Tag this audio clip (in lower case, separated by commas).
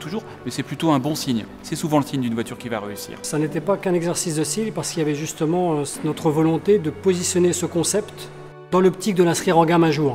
music, speech